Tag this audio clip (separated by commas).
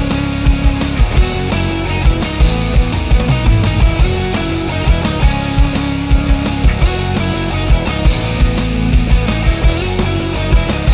Music